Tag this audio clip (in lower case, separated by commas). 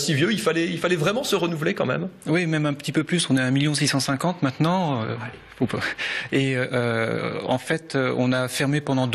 speech